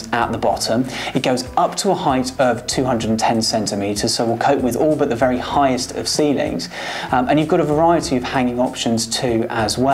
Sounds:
Speech

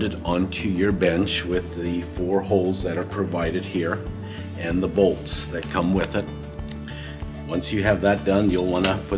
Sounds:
Speech, Music

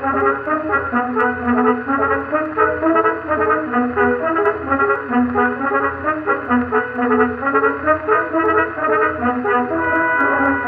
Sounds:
Trombone, French horn, Brass instrument

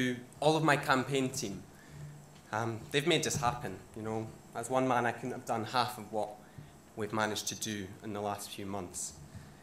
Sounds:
Speech, monologue, Male speech

